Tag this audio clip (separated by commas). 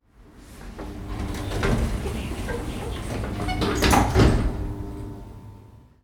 Domestic sounds, Sliding door, Door